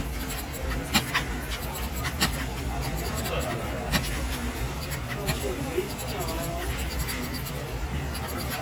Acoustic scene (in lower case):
crowded indoor space